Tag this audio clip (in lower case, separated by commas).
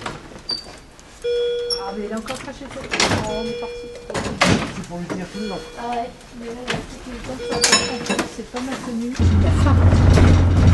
speech, vehicle